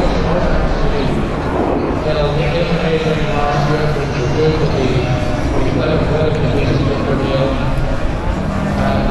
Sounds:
bovinae
livestock

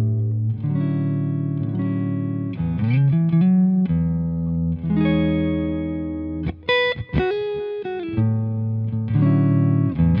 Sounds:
guitar
musical instrument
plucked string instrument
music

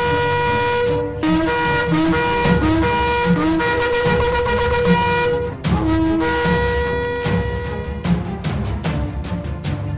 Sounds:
music

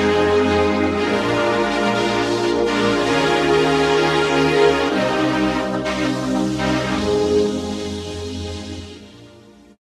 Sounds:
music

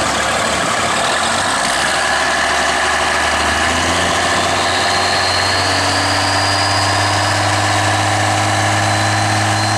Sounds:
vehicle

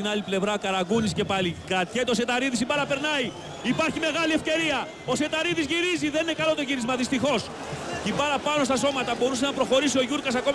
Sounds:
speech

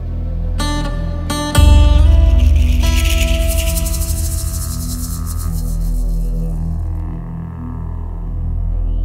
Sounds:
music

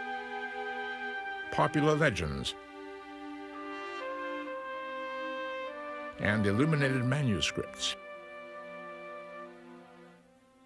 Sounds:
french horn

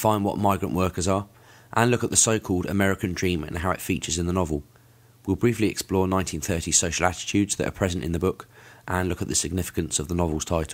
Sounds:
speech

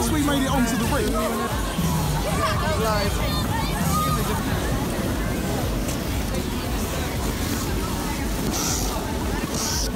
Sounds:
skiing

